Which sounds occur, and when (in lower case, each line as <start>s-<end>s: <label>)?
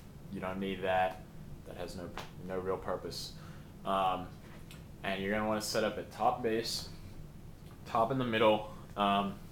0.0s-9.5s: background noise
0.3s-1.3s: man speaking
1.0s-1.2s: generic impact sounds
1.6s-2.3s: man speaking
2.2s-2.3s: generic impact sounds
2.4s-3.3s: man speaking
3.3s-3.7s: breathing
3.8s-4.3s: man speaking
4.7s-4.8s: generic impact sounds
5.0s-7.0s: man speaking
7.7s-8.8s: man speaking
9.0s-9.4s: man speaking